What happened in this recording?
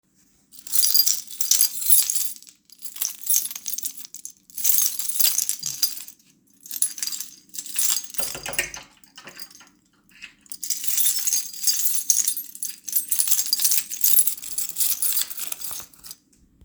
As I was leaving my bedroom, I looked for my keys. After I found them, I used them to lock the door, then I put them away back into my pocket.